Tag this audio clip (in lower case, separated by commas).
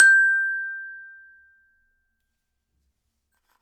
music, mallet percussion, glockenspiel, musical instrument, percussion